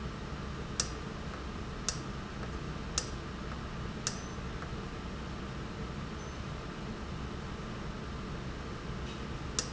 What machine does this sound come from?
valve